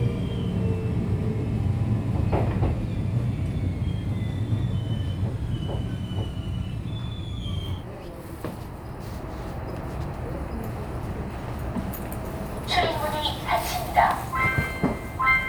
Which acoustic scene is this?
subway train